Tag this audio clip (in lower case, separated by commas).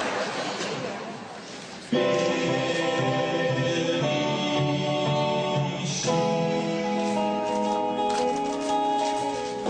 male singing, music